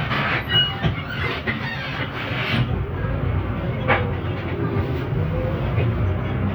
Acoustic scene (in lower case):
bus